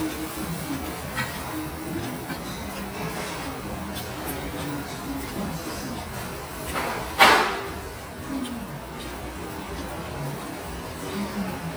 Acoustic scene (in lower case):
restaurant